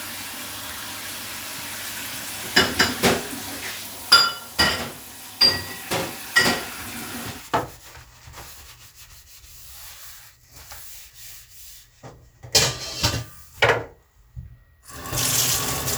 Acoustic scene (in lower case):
kitchen